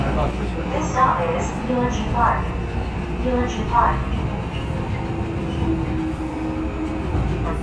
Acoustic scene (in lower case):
subway train